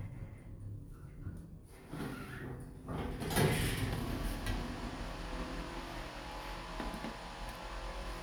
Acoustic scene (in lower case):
elevator